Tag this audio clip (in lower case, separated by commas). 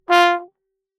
brass instrument, musical instrument, music